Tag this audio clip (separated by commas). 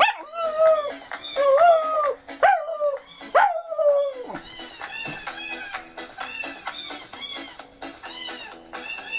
Music, Bow-wow